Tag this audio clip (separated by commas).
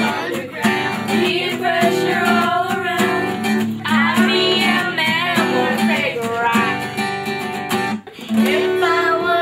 Music